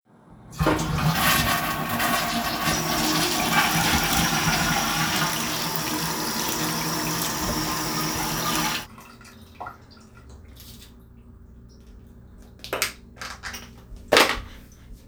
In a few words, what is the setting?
restroom